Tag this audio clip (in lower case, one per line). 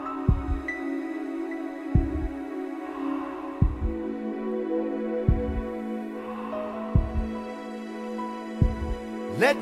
heartbeat
hum
throbbing